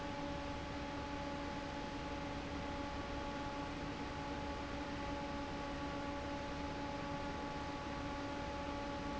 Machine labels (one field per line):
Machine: fan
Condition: normal